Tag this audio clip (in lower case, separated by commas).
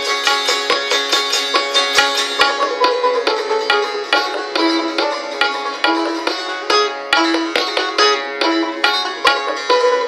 playing sitar